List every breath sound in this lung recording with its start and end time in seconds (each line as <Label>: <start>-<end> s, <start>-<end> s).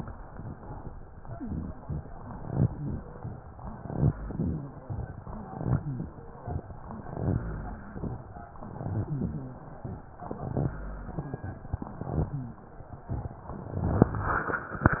Inhalation: 1.29-1.78 s, 2.35-2.69 s, 3.70-4.14 s, 5.26-5.81 s, 6.95-7.40 s, 8.58-9.13 s, 10.21-10.76 s
Exhalation: 1.78-2.13 s, 2.68-3.11 s, 2.71-3.06 s, 5.77-6.17 s, 7.44-7.89 s, 9.13-9.68 s, 10.76-11.31 s
Rhonchi: 2.71-3.15 s, 4.21-4.65 s, 5.31-5.77 s, 5.77-6.17 s, 6.95-7.40 s, 7.44-7.89 s, 8.58-9.13 s, 9.13-9.68 s, 10.76-11.31 s